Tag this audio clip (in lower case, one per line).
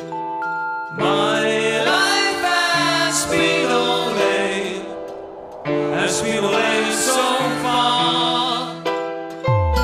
music